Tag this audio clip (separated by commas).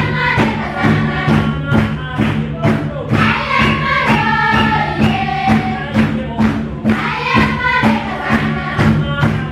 Child singing, Choir, Male singing, Music